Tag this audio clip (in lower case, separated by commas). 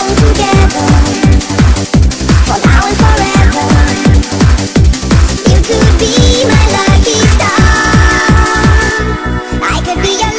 electronic music, music, trance music